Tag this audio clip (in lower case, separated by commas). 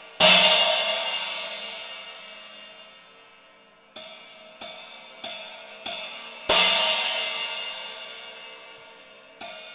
music, cymbal, drum, musical instrument